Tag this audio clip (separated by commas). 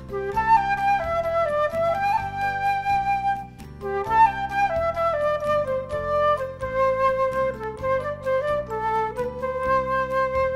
playing flute